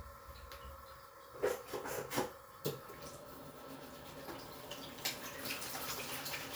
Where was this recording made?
in a restroom